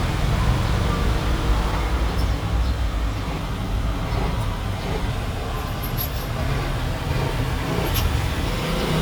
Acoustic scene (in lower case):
street